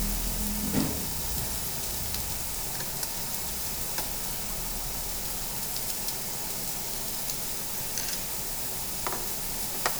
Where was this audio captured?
in a restaurant